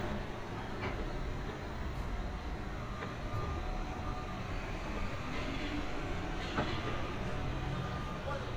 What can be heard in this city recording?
large-sounding engine, reverse beeper